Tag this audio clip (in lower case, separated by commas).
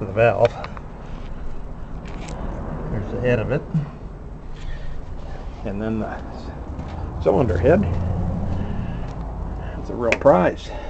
vehicle, speech